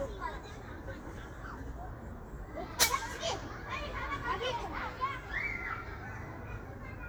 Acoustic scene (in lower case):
park